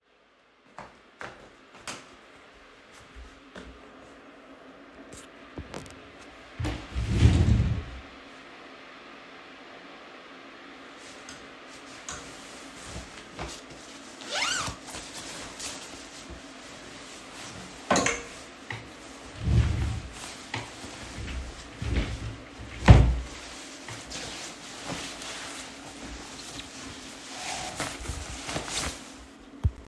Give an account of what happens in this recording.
I walked into my bedroom, switched on the light, opened a wardrobe, and then took out a jacket, unzipped it and put the hanger back in the wardrobe. At the end, I closed the wardrobe and put on the jacket.